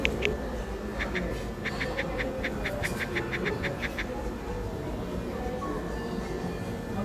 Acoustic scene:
cafe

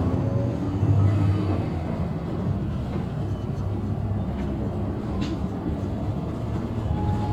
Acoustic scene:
bus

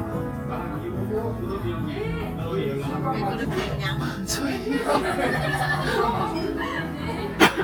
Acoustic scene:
crowded indoor space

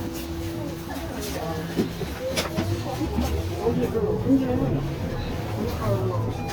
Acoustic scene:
bus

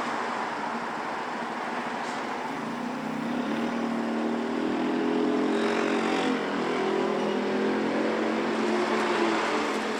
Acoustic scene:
street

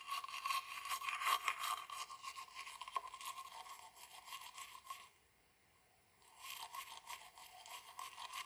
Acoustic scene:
restroom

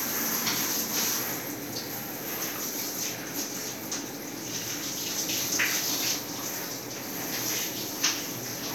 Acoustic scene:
restroom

